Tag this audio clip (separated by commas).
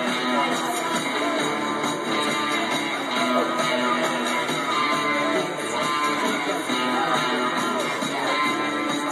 Guitar, Strum, Plucked string instrument, Musical instrument, Music, Acoustic guitar